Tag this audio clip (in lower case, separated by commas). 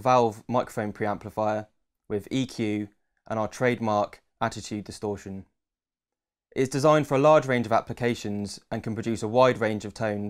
speech